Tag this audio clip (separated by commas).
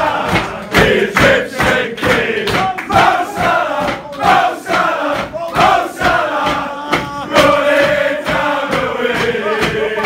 singing choir